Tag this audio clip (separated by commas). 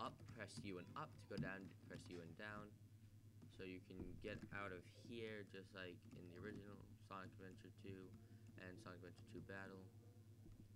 Speech